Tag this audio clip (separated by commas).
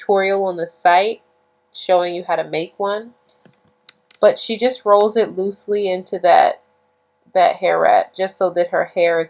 Speech